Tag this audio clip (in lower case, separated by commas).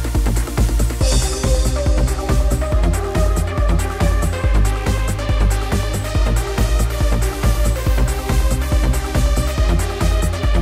music